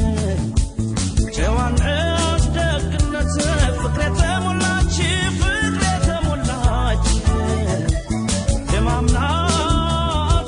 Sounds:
jazz, music, middle eastern music

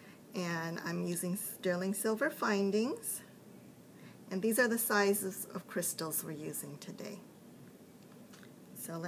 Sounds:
speech

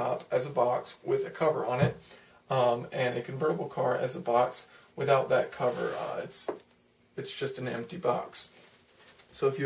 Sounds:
speech

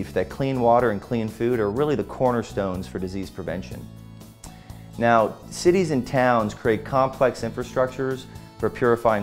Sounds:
music, speech

